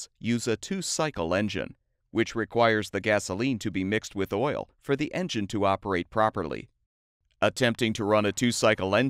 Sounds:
Speech

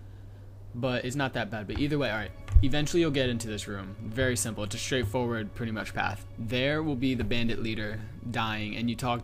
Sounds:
Speech

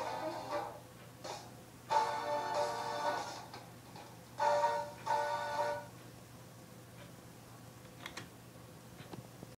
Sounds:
Television, Music

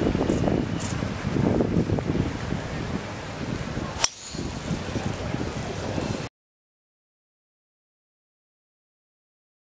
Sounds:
surf

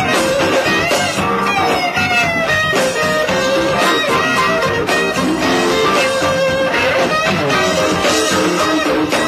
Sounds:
Plucked string instrument, Musical instrument, Electric guitar, Strum, Acoustic guitar, Music

